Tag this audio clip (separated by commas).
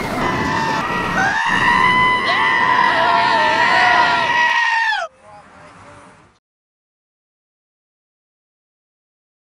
Sheep, Bleat